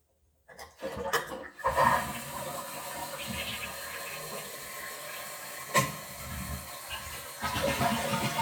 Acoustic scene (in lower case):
restroom